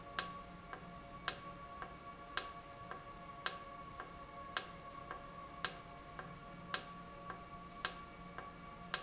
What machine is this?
valve